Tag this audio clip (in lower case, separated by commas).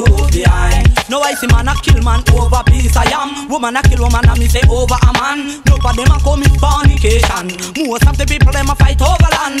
music